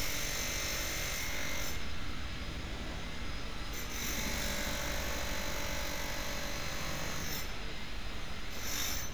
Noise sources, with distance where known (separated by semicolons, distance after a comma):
unidentified impact machinery, near; unidentified powered saw, near